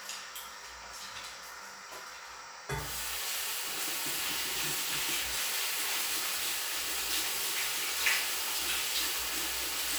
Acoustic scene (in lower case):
restroom